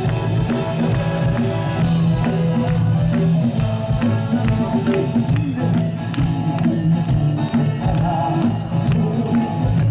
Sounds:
music

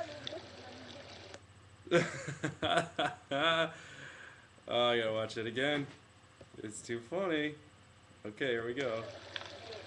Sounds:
speech

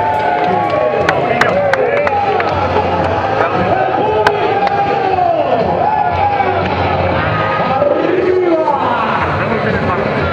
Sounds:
speech
music
outside, urban or man-made

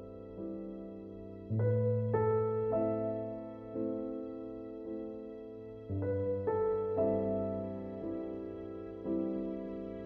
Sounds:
new-age music
music

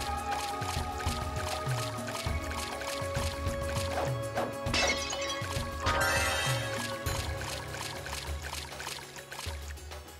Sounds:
music

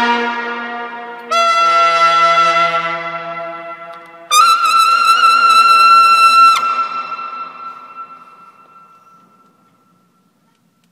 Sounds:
brass instrument
music
trombone

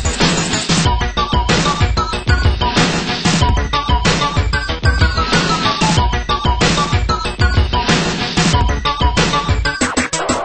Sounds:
music
soundtrack music
exciting music
background music

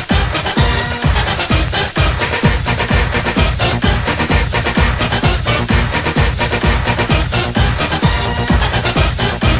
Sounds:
electronic music
techno
music

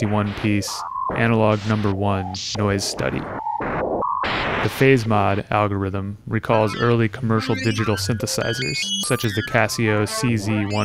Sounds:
speech

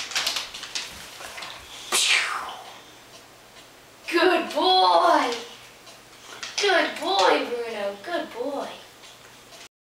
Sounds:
speech

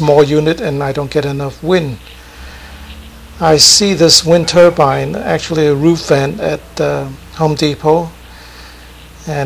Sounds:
speech

